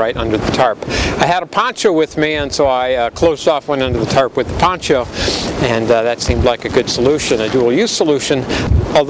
A man speaking